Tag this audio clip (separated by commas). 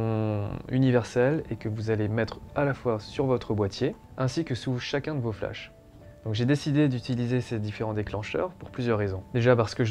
Music, Speech